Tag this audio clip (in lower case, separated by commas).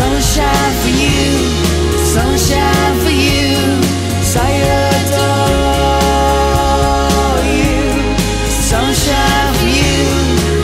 music